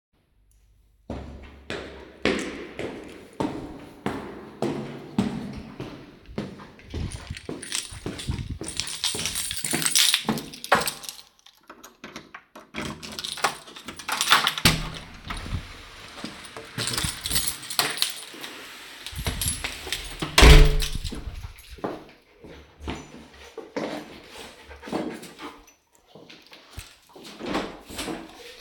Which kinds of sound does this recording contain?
footsteps, keys, door